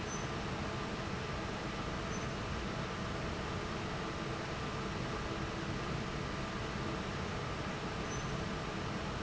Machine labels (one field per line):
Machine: fan